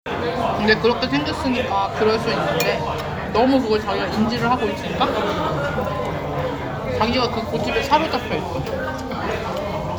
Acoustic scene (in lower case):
crowded indoor space